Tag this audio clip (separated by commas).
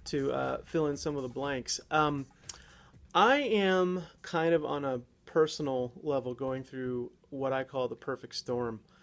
Speech